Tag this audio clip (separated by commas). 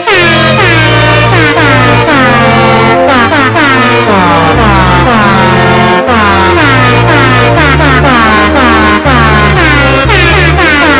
truck horn, Music